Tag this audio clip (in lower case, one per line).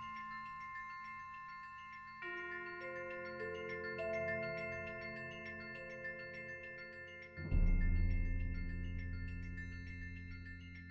percussion
music
marimba